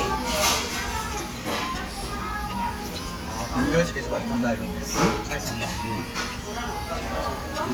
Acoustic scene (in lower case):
restaurant